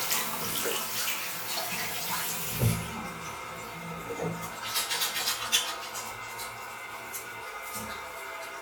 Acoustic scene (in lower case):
restroom